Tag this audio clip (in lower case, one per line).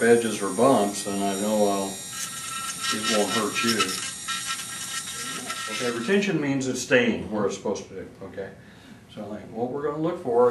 electric shaver